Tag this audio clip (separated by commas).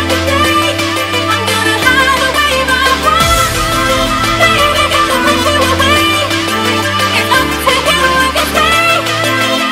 Music